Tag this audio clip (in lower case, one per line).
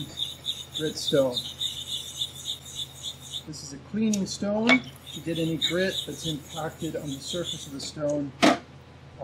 sharpen knife